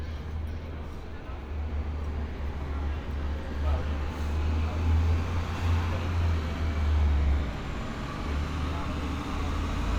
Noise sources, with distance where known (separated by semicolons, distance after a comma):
large-sounding engine; person or small group talking